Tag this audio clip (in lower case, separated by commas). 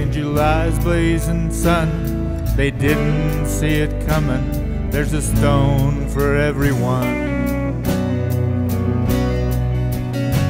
music, slide guitar